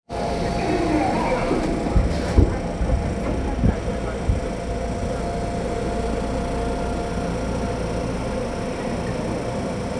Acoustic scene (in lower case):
subway train